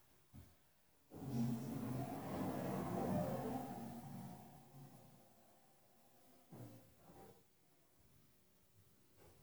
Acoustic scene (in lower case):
elevator